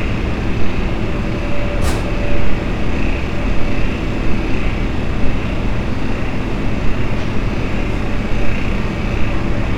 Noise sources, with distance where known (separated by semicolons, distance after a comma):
engine of unclear size, near; unidentified impact machinery